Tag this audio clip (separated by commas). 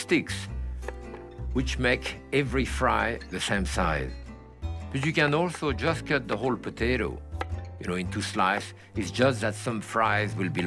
Music, Speech